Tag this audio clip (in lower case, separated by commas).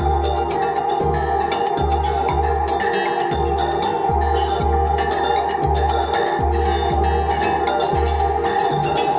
music, percussion